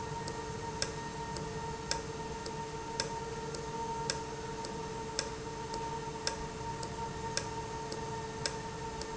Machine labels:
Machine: valve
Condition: normal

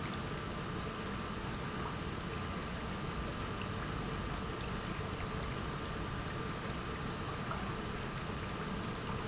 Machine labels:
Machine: pump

